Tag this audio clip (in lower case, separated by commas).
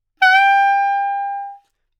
music, wind instrument, musical instrument